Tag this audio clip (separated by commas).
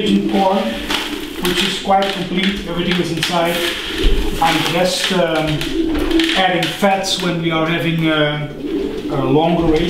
Bird vocalization, Bird, dove, Coo